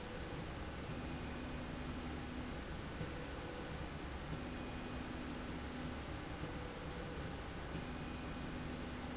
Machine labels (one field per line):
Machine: slide rail